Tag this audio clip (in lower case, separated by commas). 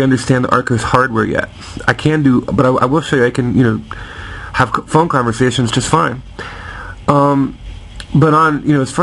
speech